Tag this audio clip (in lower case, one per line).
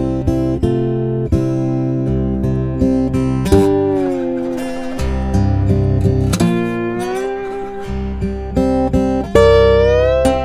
playing steel guitar